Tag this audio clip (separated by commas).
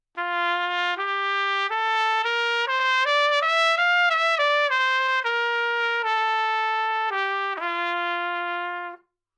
Trumpet, Musical instrument, Music, Brass instrument